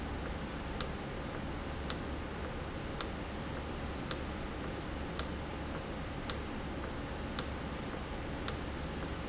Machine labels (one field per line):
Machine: valve